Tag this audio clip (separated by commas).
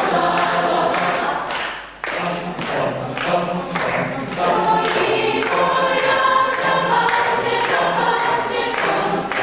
Music, Choir, singing choir, Singing